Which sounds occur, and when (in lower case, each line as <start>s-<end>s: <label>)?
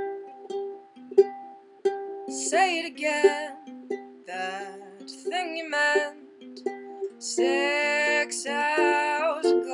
0.0s-9.7s: music
2.1s-3.6s: female singing
4.2s-4.7s: female singing
5.0s-6.1s: female singing
7.1s-9.7s: female singing